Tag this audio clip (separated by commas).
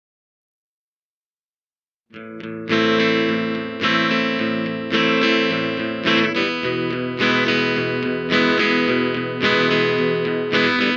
Music